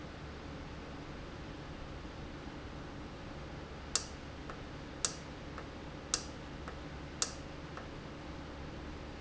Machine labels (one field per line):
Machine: valve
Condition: normal